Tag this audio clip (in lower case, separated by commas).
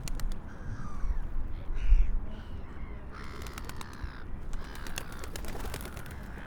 animal